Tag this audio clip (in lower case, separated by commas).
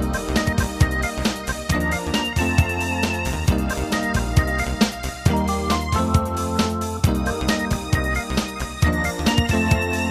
soundtrack music, music